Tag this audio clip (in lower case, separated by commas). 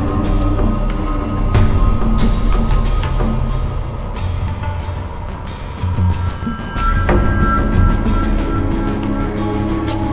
soundtrack music, music